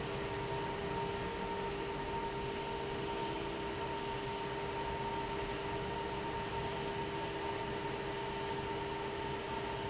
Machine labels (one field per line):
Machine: fan